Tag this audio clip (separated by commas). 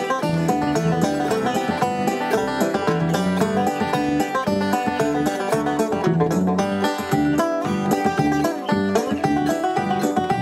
Music, Musical instrument, Plucked string instrument, Banjo, Bowed string instrument, Country, Bluegrass